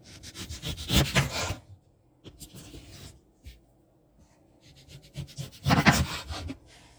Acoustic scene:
kitchen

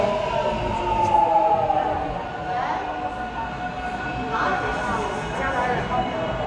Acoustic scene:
subway station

